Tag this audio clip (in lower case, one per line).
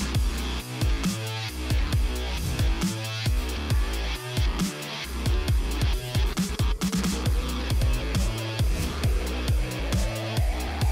music